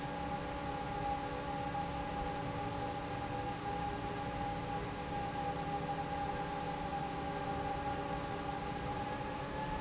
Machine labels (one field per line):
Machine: fan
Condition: normal